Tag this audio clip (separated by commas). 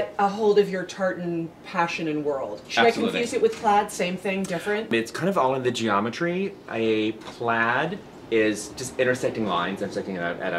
Speech